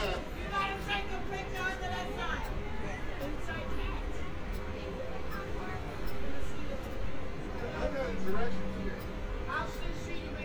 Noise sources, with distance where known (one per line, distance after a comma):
unidentified human voice, near